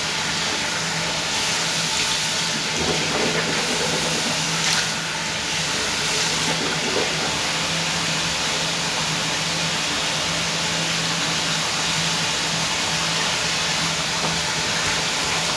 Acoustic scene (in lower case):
restroom